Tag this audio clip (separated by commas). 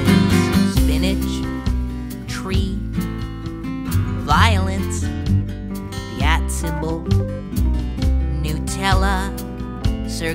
Music